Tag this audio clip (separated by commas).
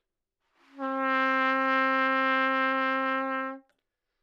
Trumpet, Brass instrument, Music, Musical instrument